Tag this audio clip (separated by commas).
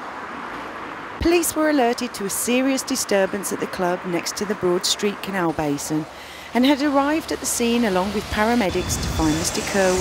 Speech